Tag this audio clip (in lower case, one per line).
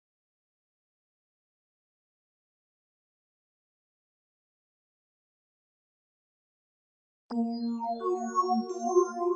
music
silence